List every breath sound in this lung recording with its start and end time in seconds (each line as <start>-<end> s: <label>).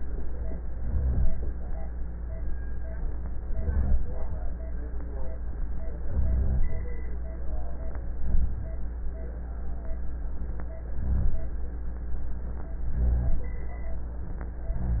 0.70-1.50 s: inhalation
3.44-4.23 s: inhalation
6.07-6.87 s: inhalation
8.20-8.88 s: inhalation
10.93-11.61 s: inhalation
12.86-13.55 s: inhalation